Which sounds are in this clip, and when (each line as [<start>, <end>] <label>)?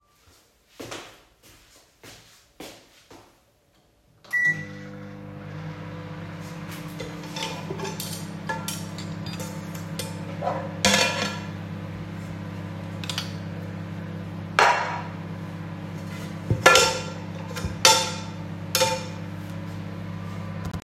[0.65, 3.93] footsteps
[4.27, 20.84] microwave
[7.30, 12.09] cutlery and dishes
[12.92, 13.48] cutlery and dishes
[14.52, 19.43] cutlery and dishes